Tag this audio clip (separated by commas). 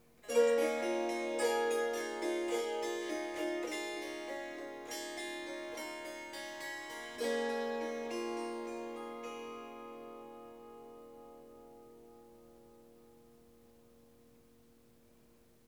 Musical instrument, Harp, Music